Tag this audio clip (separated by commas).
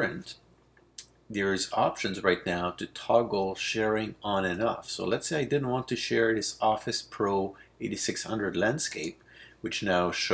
Speech